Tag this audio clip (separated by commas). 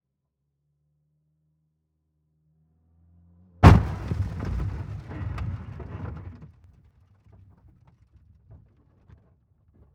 Vehicle, Car, Motor vehicle (road)